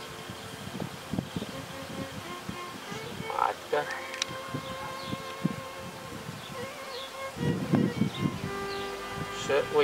Insect noises with music being played in background softly then a man speaks